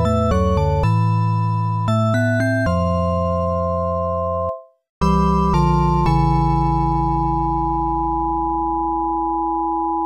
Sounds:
video game music

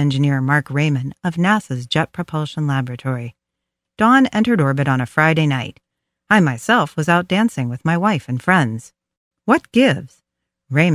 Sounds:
speech

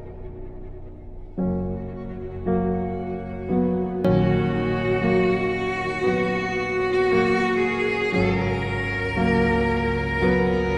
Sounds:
music
tender music

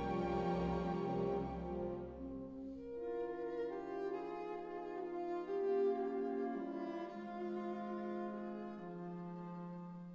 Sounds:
music
cello

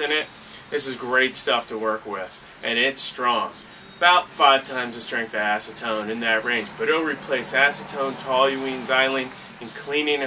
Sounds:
speech

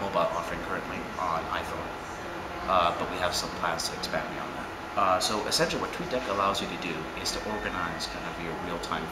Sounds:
speech

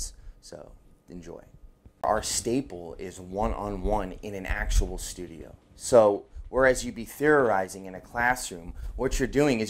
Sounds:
speech

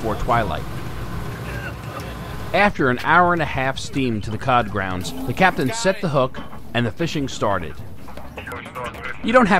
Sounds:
wind

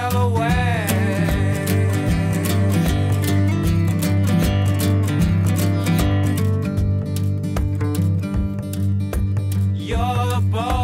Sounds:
music

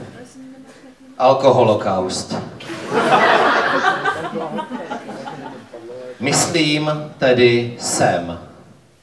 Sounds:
speech

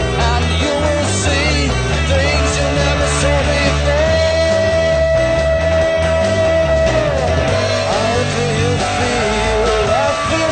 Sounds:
music

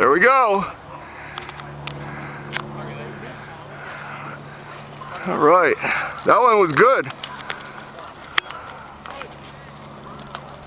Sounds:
speech
vehicle

